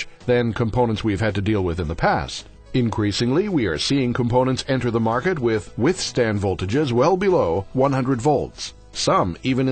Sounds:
Speech, Music

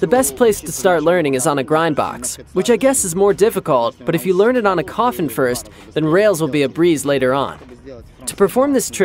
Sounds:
Speech

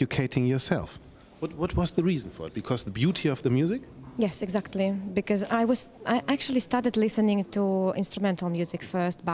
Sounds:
Speech

